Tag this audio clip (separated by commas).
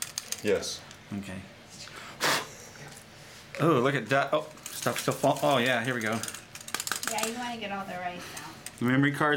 Speech